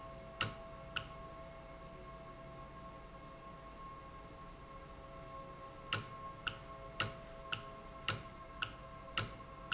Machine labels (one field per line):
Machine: valve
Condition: normal